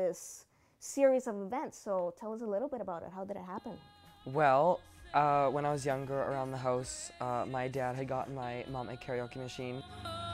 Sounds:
Speech, Male singing, Music

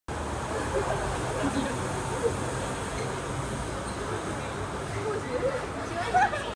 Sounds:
Speech

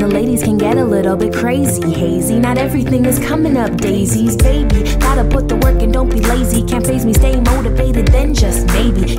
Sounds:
Rhythm and blues, Music, Tender music

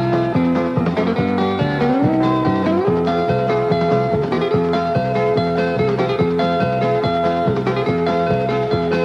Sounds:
Guitar, Plucked string instrument, Strum, Acoustic guitar, Musical instrument, Music

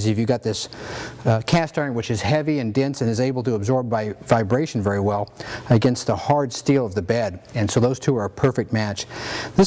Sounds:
Speech

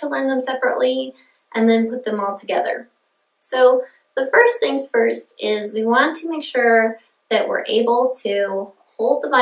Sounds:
Speech

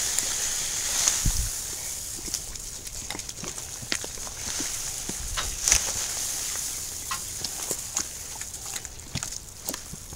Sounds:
Bird

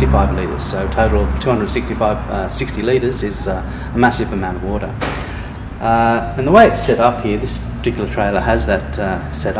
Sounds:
Speech

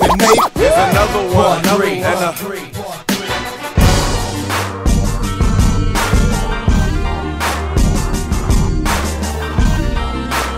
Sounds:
Music

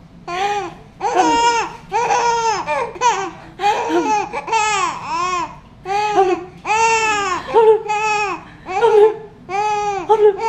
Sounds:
people giggling

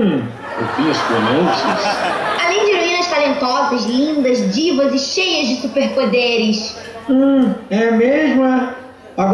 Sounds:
Speech

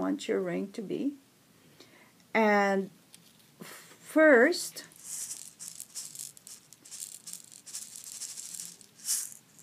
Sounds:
inside a small room, Speech

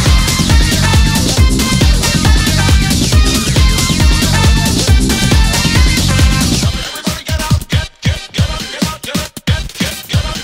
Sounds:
Disco, Music

